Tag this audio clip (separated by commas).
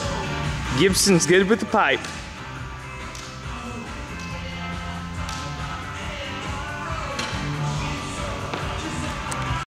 Speech, Music